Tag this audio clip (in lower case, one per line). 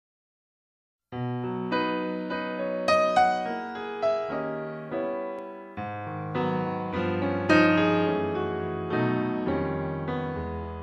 piano
keyboard (musical)